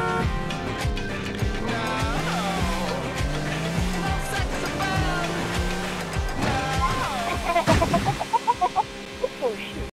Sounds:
music

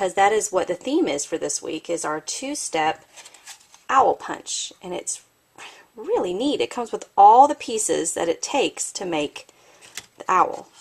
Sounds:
speech

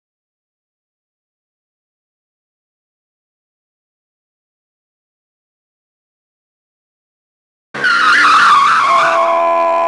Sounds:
skidding

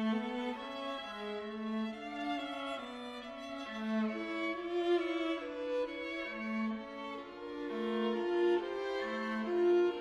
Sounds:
musical instrument, violin, music

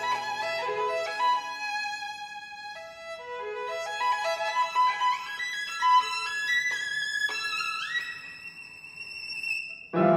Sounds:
playing violin, music, fiddle, musical instrument

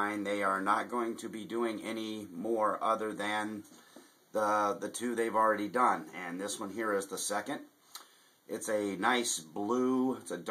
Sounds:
speech

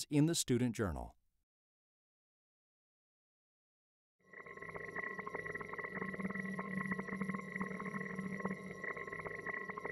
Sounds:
speech

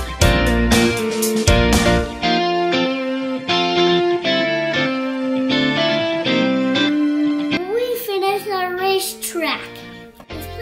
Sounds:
speech, music, kid speaking, inside a small room

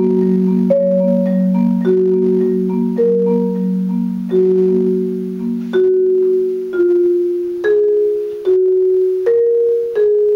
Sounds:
musical instrument, music, percussion, xylophone

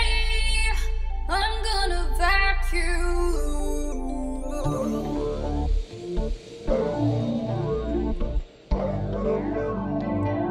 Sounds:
music

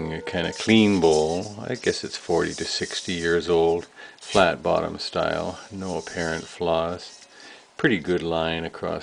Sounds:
speech

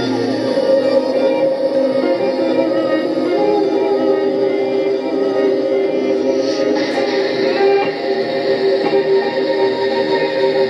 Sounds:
strum, acoustic guitar, musical instrument, electric guitar, plucked string instrument, guitar, music

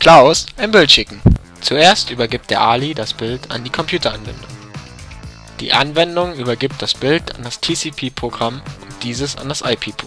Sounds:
music, speech

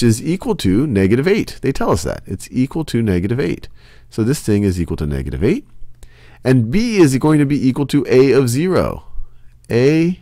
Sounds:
speech

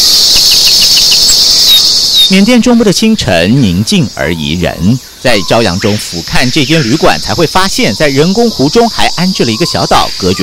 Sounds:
bird, bird vocalization, chirp

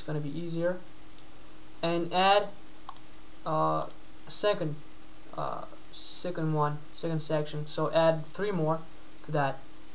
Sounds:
speech

